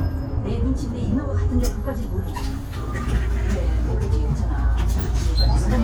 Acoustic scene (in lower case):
bus